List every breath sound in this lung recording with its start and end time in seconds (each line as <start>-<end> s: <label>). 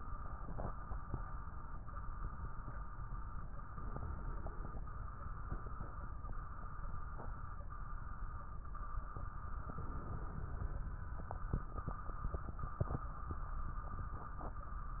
3.76-4.85 s: inhalation
9.74-10.83 s: inhalation